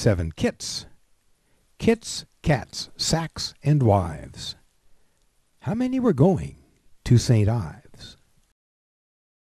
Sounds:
speech

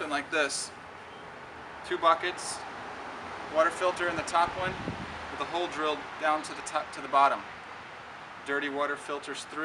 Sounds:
speech

